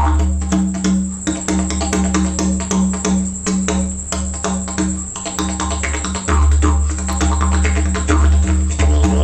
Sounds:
playing didgeridoo

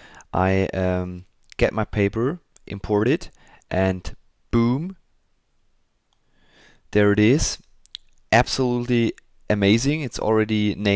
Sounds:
Speech

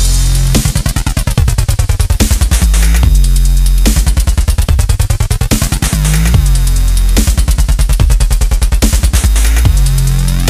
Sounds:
Electronic music, Music, Dubstep

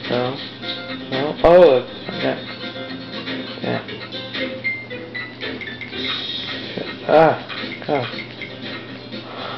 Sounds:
Music, Speech

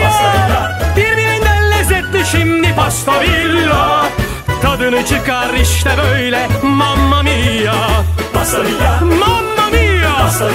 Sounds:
Music

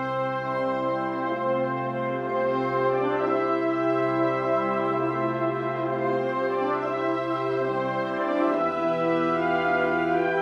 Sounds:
Music

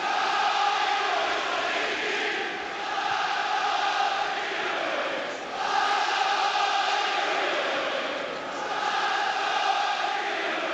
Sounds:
Choir

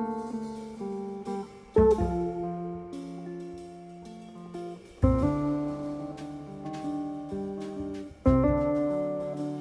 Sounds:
Music, Musical instrument, Bowed string instrument

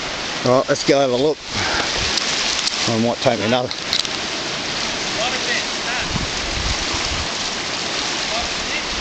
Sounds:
Speech

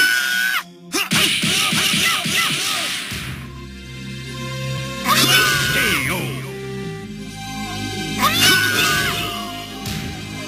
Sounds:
Music, Speech

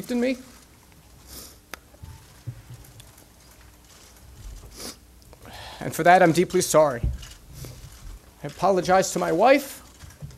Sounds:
Speech

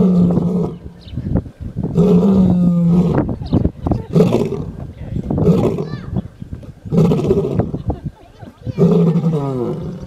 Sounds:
lions roaring

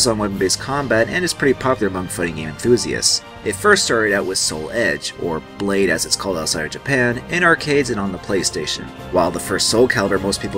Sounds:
Speech, Music

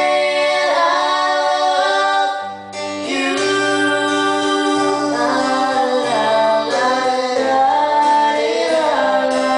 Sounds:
Plucked string instrument, inside a small room, Musical instrument, Singing, Guitar, Music

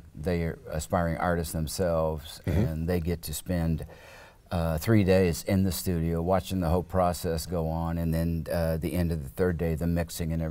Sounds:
Speech

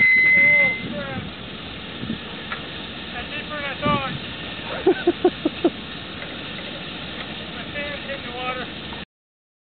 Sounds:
Speech

